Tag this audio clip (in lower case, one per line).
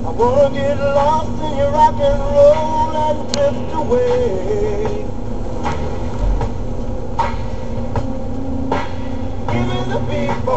music
vehicle